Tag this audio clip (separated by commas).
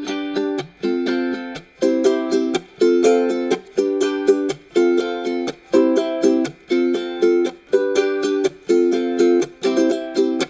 Music